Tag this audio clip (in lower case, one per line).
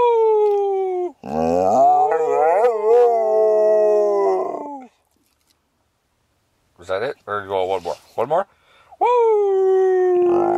dog howling